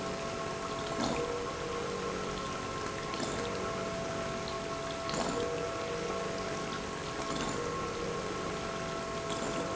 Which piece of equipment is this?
pump